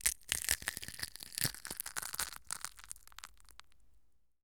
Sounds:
Crushing, Crack

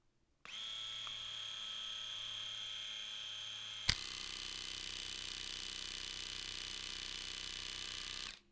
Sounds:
Domestic sounds

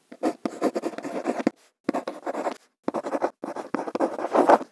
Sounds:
home sounds, Writing

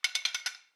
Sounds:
Tools

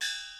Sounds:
Musical instrument, Music, Gong, Percussion

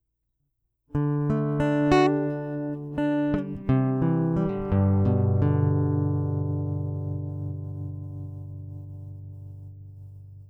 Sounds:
Guitar, Music, Plucked string instrument, Musical instrument

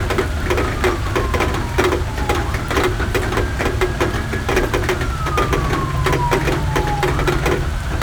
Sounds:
Rain, Water

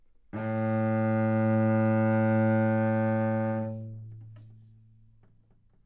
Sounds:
Musical instrument, Music, Bowed string instrument

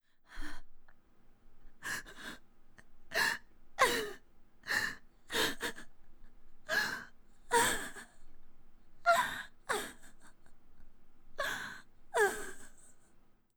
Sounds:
Crying, Human voice

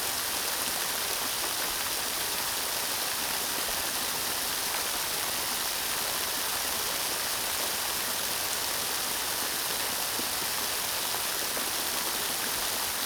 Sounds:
Water, Rain

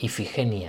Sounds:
Human voice

